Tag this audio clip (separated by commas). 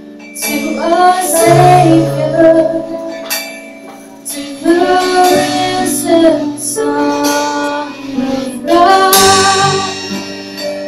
Music